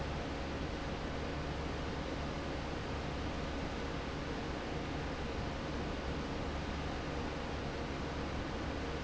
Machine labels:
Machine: fan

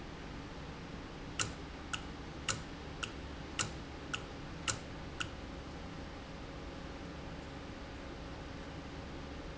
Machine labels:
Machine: valve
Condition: normal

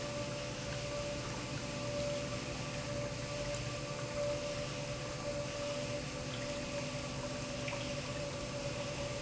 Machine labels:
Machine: pump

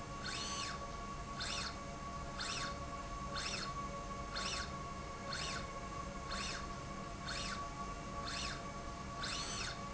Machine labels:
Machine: slide rail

